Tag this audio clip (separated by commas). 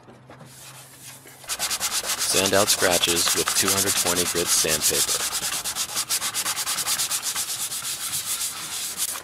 Speech